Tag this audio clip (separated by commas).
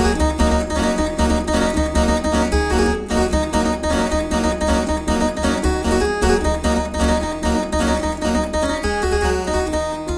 playing harpsichord